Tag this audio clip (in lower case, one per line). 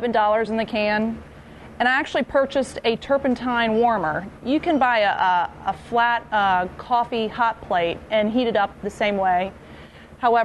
speech